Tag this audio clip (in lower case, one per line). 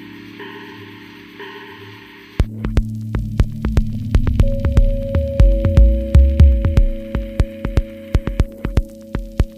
music
harmonic